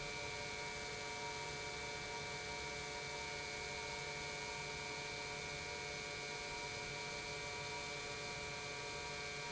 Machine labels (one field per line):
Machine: pump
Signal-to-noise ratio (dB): 6 dB